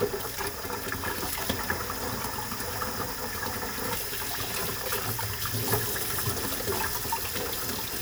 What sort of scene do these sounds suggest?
kitchen